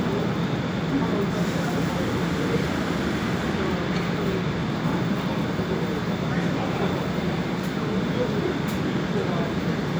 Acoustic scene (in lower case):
subway station